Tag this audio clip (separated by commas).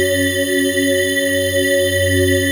Organ, Musical instrument, Keyboard (musical), Music